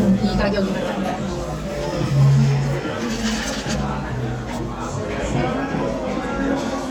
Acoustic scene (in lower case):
crowded indoor space